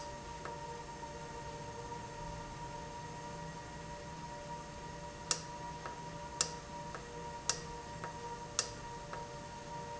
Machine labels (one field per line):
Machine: valve